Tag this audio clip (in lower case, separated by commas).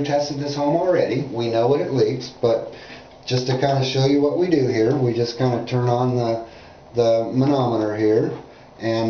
speech